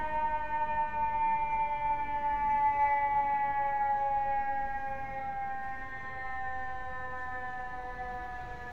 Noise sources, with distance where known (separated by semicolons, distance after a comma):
unidentified alert signal, near